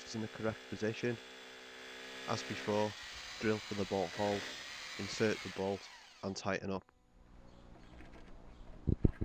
A quiet buzzing and a man speaking